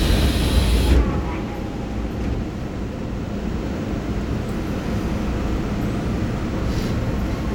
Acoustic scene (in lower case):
subway train